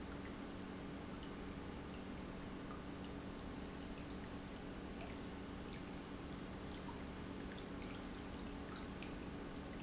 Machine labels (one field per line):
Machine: pump